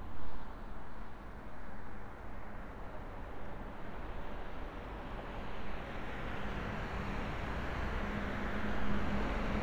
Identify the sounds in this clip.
medium-sounding engine